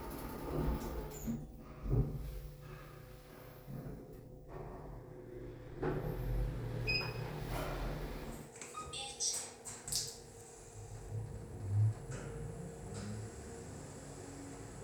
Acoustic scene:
elevator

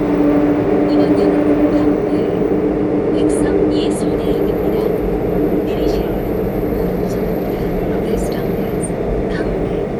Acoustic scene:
subway train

